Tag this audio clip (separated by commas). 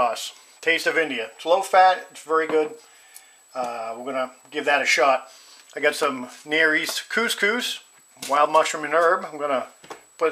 Speech